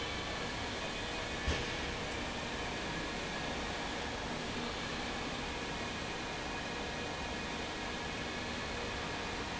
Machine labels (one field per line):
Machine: fan